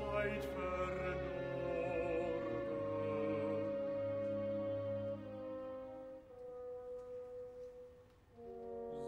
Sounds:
Music, Male singing

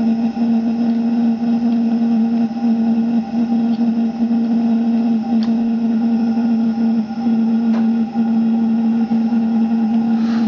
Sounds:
Engine

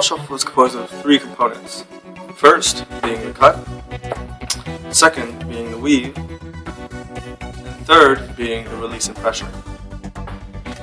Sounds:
Speech, Music

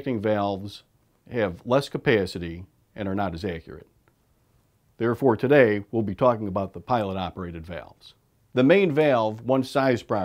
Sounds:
Speech

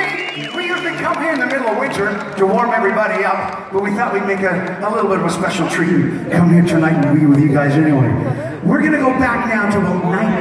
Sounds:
Music, Male speech, Speech, monologue

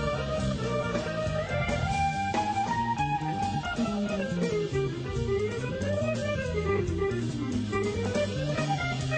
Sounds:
Music, Plucked string instrument, Blues, Guitar, Musical instrument

